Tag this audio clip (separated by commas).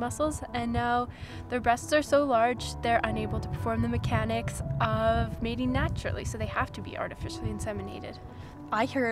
Music, Speech